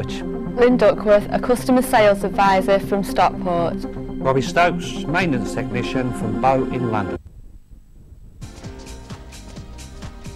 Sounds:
speech, music

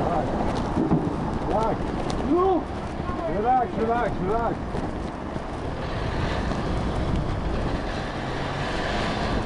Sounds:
speech, vehicle, car, bicycle

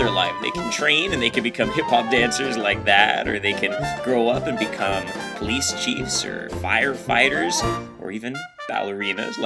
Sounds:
speech, music

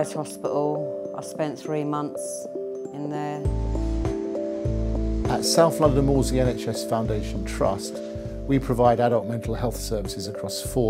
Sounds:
speech, music

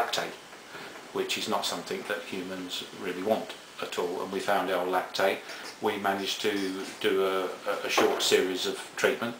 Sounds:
speech

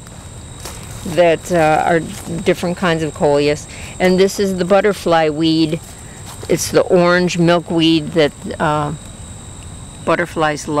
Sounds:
outside, rural or natural, speech

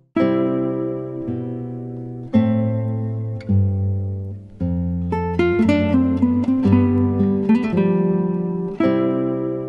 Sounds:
music

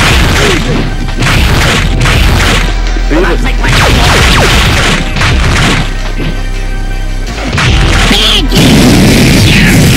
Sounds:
speech, music

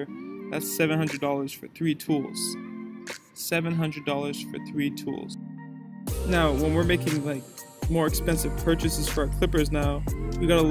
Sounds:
cutting hair with electric trimmers

